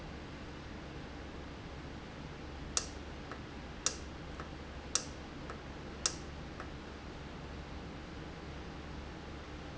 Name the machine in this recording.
valve